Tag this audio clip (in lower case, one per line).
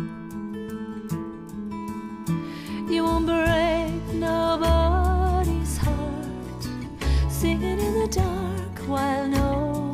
female singing
music